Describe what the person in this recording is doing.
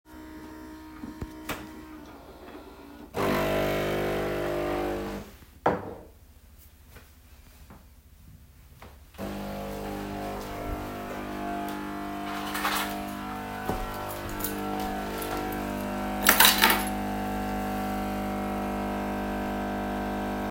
I make a cup of coffee open a drawer close it then put keys next to the coffee machine